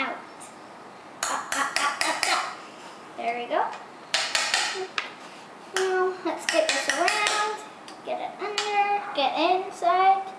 A young girl speaks with some light banging